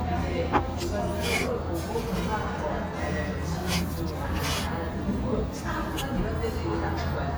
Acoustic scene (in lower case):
cafe